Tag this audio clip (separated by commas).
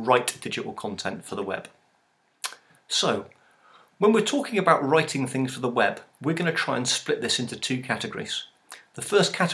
Speech